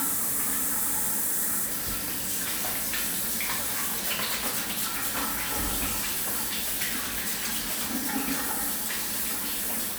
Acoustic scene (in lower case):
restroom